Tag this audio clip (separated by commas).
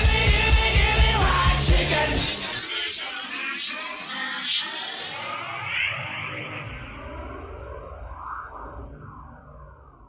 Music